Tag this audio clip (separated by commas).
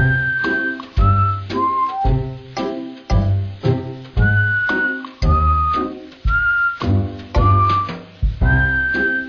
Music